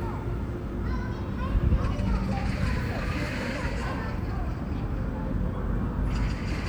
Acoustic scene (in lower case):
park